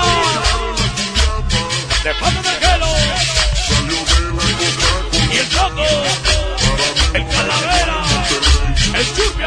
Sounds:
music

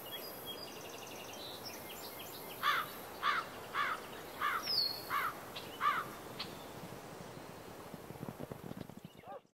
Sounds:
wind noise (microphone)

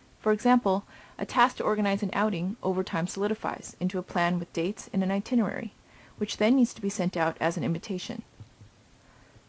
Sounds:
narration

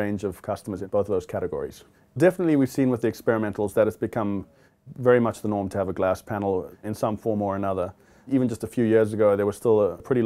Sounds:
speech

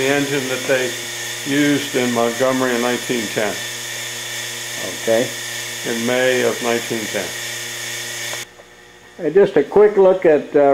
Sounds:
speech
engine

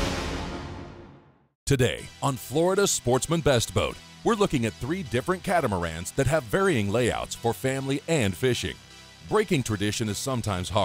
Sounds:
speech
music

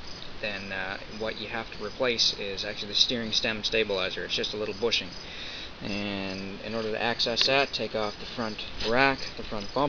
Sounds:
speech

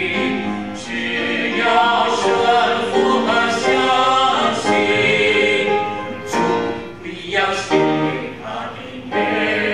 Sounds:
gospel music
choir
christian music
music
singing

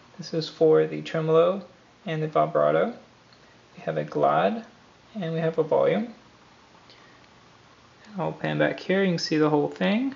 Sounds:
speech

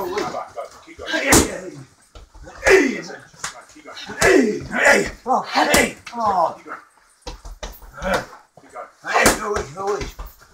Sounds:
inside a small room
speech

